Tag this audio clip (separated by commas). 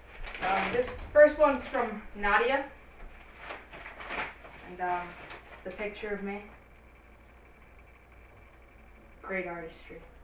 Speech